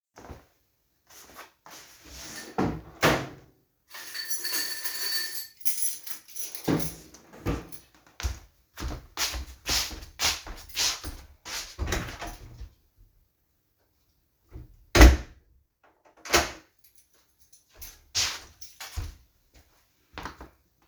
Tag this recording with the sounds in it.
footsteps, wardrobe or drawer, keys, door